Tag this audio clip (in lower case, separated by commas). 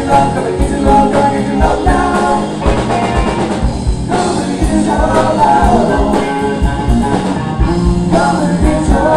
musical instrument, singing, music, drum kit, rock music